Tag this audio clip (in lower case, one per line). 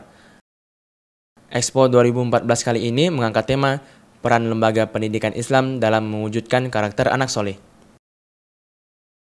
speech